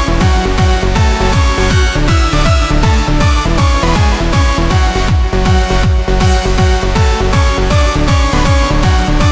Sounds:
Music, Techno

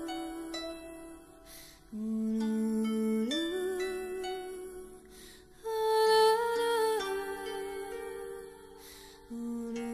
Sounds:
Music

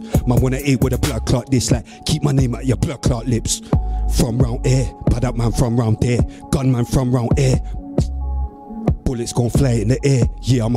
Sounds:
Hip hop music, Music

